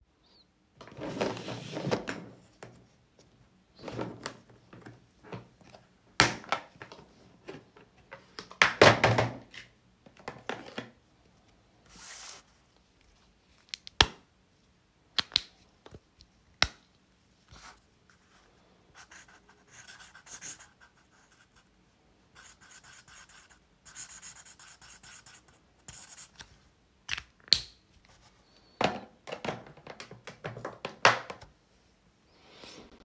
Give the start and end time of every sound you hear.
[0.38, 31.64] light switch
[0.73, 12.82] cutlery and dishes
[13.65, 16.81] keys
[29.20, 31.59] cutlery and dishes

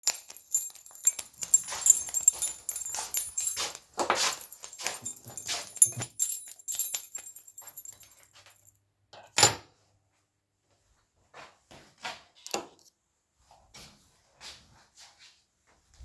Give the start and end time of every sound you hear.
[0.00, 8.77] keys
[1.35, 5.74] footsteps
[3.93, 4.20] light switch
[9.25, 9.71] keys
[11.28, 12.27] footsteps
[12.34, 12.78] light switch
[13.69, 16.04] footsteps

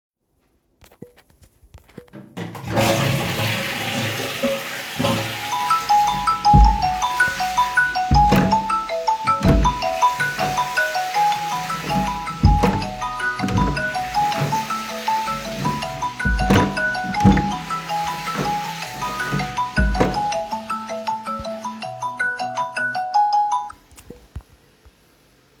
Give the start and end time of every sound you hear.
[2.31, 24.45] toilet flushing
[5.30, 23.94] phone ringing
[6.37, 8.88] door
[9.25, 10.79] door
[11.83, 12.94] door
[13.44, 14.99] door
[15.83, 17.86] door
[19.41, 20.99] door

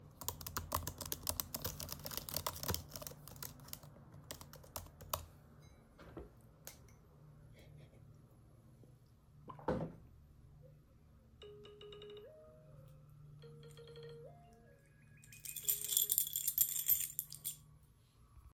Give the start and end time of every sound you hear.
[0.07, 5.49] keyboard typing
[11.42, 16.24] phone ringing
[15.43, 17.68] keys

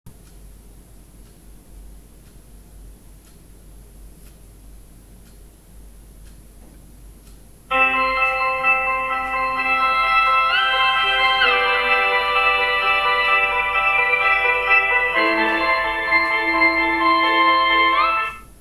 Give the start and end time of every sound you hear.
[7.70, 18.60] phone ringing

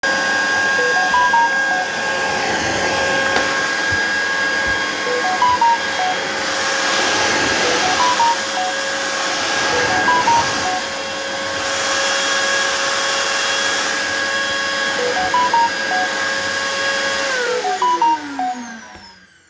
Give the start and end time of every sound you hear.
[0.00, 19.50] vacuum cleaner
[0.74, 1.89] phone ringing
[4.97, 6.17] phone ringing
[7.55, 8.73] phone ringing
[9.66, 10.87] phone ringing
[14.93, 16.09] phone ringing
[17.44, 18.56] phone ringing

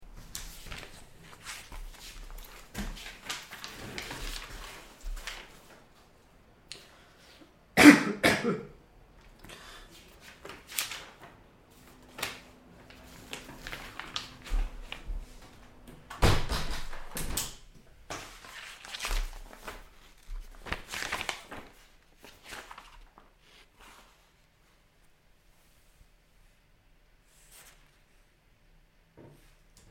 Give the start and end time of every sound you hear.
[16.14, 17.83] window

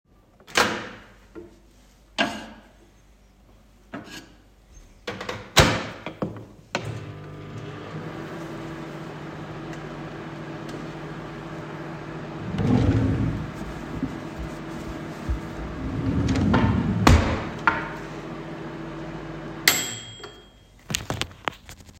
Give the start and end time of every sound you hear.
[0.03, 20.69] microwave
[12.51, 14.09] wardrobe or drawer
[15.61, 17.87] wardrobe or drawer

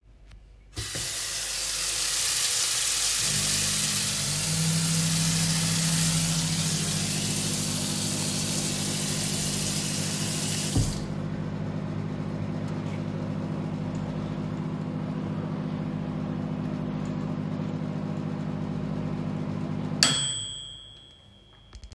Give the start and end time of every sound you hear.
[0.73, 11.40] running water
[3.33, 21.95] microwave

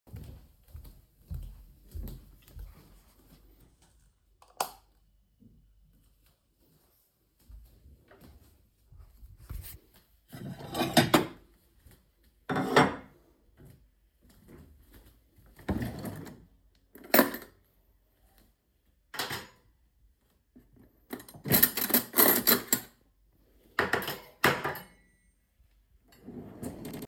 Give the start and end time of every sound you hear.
[0.00, 3.08] footsteps
[4.43, 4.80] light switch
[5.75, 9.45] footsteps
[10.29, 11.50] cutlery and dishes
[11.82, 12.01] footsteps
[12.44, 13.19] cutlery and dishes
[13.09, 15.59] footsteps
[15.65, 16.47] wardrobe or drawer
[16.99, 17.47] cutlery and dishes
[19.07, 19.55] cutlery and dishes
[21.03, 22.89] cutlery and dishes
[23.75, 24.85] cutlery and dishes
[26.21, 27.07] wardrobe or drawer

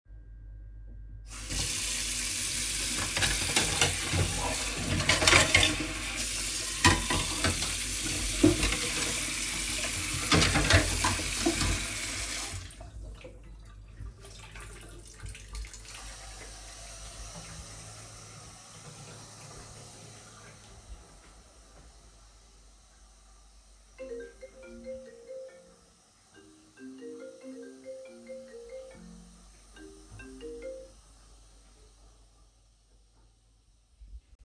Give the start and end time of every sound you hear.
[1.28, 33.90] running water
[3.14, 11.99] cutlery and dishes
[23.97, 30.97] phone ringing

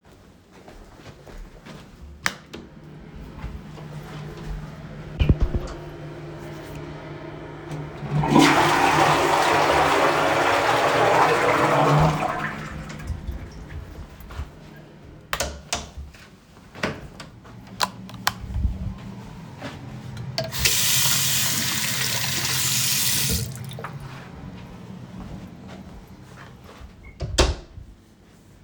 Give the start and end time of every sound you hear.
[2.16, 2.69] light switch
[7.99, 13.59] toilet flushing
[15.21, 15.84] door
[15.31, 15.97] light switch
[16.73, 17.04] door
[17.74, 18.44] light switch
[20.30, 23.62] running water
[27.18, 27.79] door

